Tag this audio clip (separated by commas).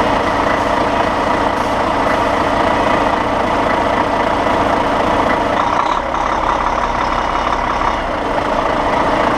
Vehicle